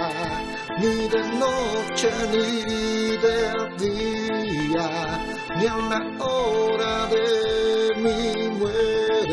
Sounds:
Music, Christmas music

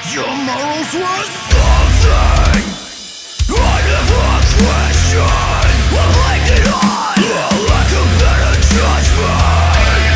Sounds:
Soundtrack music, Music

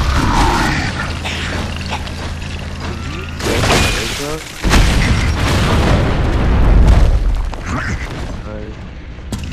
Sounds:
Speech

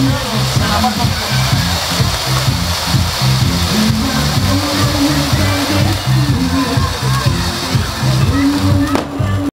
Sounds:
Music, Speech

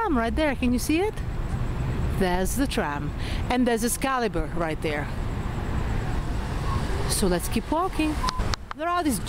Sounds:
Speech, Vehicle

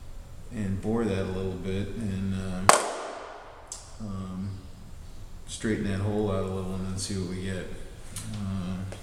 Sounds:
Speech

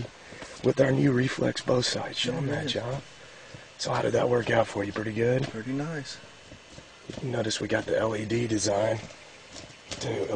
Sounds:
Speech

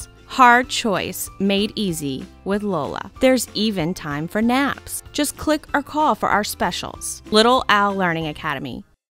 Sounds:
Music, Speech

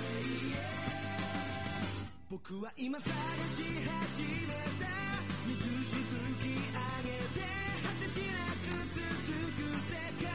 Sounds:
Music

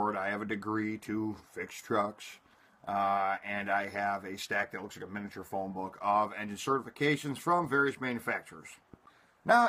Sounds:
Speech

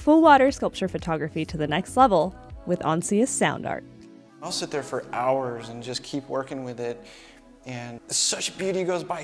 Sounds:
Speech, Music

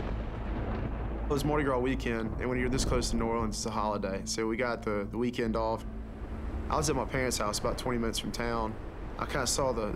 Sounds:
tornado roaring

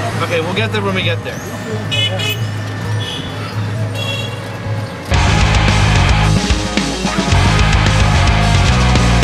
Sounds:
Music, Speech

